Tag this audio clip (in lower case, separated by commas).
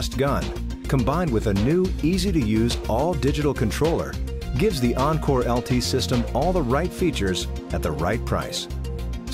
speech, music